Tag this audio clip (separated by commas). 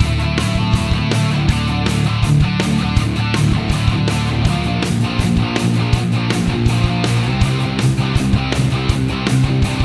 Music